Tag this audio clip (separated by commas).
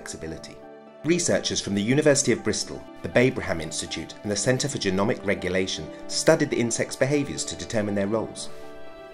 Speech